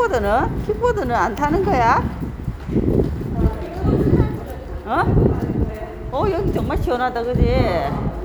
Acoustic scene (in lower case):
residential area